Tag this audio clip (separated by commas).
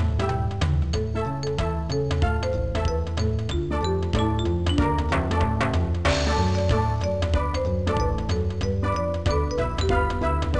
Music, Soundtrack music